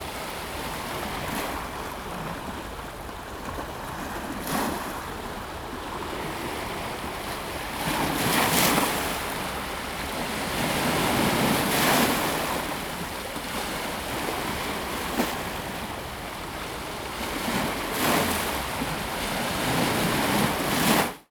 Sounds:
waves
ocean
water

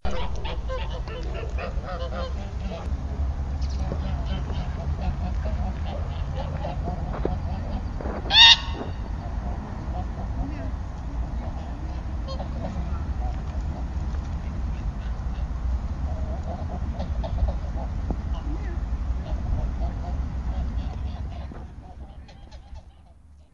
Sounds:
livestock
fowl
animal

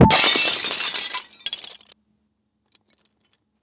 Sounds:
shatter
glass

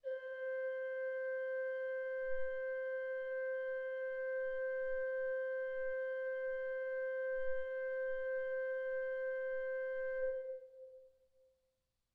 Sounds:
keyboard (musical)
music
organ
musical instrument

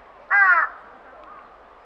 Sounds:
bird
animal
crow
wild animals

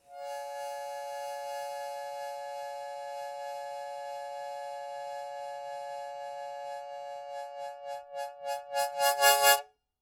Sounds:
music
harmonica
musical instrument

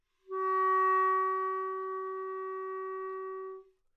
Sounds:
musical instrument
wind instrument
music

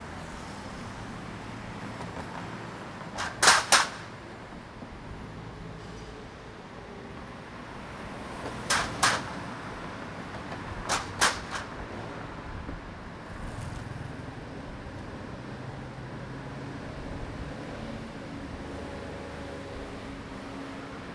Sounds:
vehicle
motor vehicle (road)
roadway noise

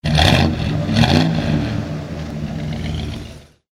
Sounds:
engine
vroom

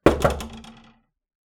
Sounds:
door
wood
knock
domestic sounds

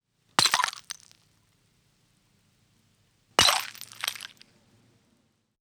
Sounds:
shatter
glass

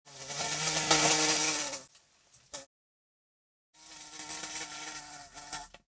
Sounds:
animal
wild animals
insect

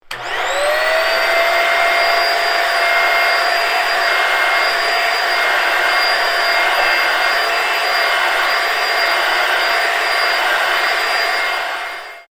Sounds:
home sounds

